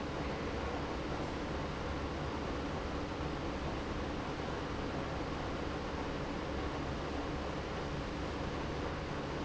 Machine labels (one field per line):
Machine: pump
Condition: abnormal